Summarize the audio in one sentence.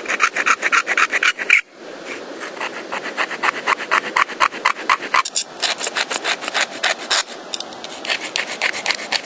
Two things scrape against each other